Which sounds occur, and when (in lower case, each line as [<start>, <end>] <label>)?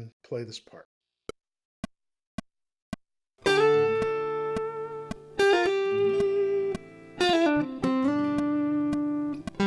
[0.00, 0.12] male speech
[0.25, 0.87] male speech
[1.26, 1.36] music
[1.84, 1.94] music
[2.38, 2.47] music
[2.92, 3.01] music
[3.38, 9.65] music